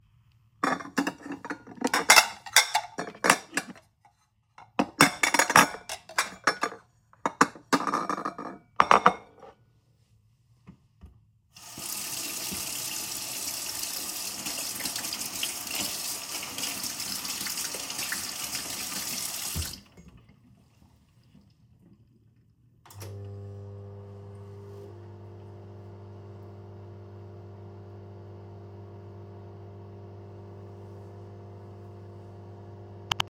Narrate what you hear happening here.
I took a plate from my cupboard, washed my hands, and then started the microwave.